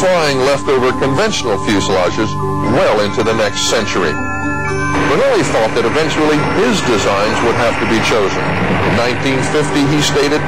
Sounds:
vehicle, fixed-wing aircraft

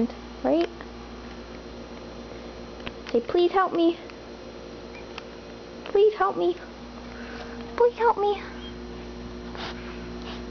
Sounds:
speech

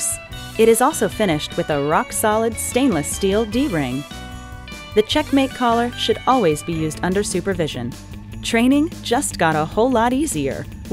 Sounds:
music, speech

